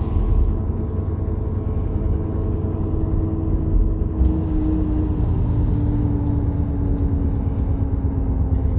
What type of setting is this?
car